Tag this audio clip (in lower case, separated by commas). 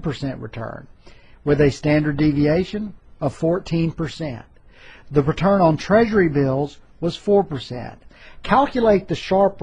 speech